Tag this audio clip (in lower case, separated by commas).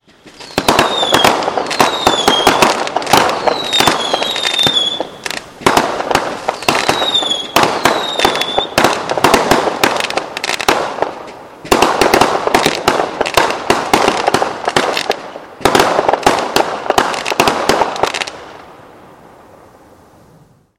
fireworks, explosion